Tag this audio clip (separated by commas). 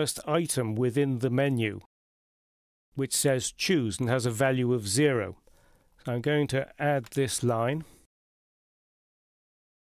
Speech